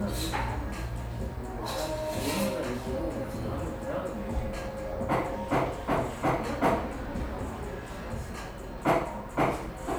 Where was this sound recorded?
in a cafe